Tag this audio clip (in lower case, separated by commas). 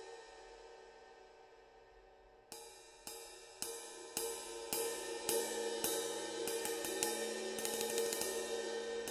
playing cymbal, cymbal